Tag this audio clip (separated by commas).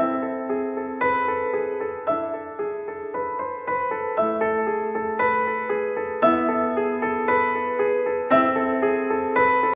Music